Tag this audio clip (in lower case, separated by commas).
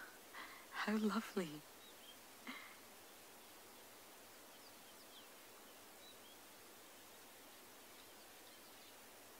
barn swallow calling